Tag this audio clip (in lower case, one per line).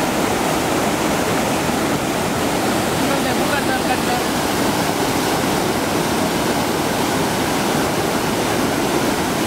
speech
waterfall